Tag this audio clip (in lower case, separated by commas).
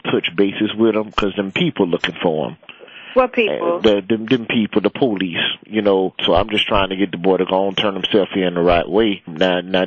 speech